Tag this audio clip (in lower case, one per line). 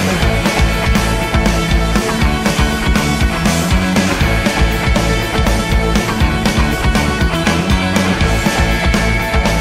music